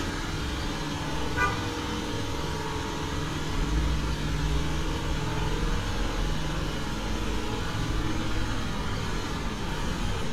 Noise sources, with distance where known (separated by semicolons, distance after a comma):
engine of unclear size, near; car horn, near